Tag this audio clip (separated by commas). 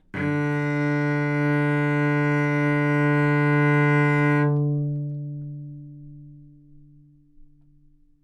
Musical instrument, Music, Bowed string instrument